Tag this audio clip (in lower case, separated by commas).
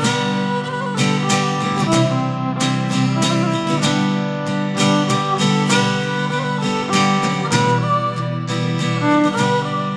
violin, musical instrument, music